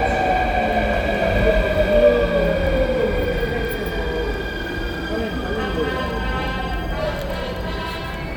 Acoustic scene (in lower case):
subway station